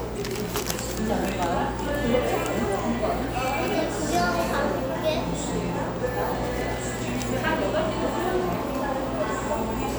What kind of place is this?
cafe